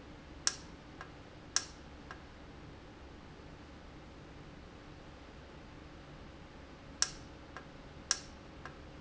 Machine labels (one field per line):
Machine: valve